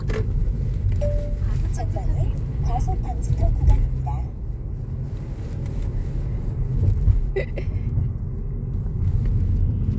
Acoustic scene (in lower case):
car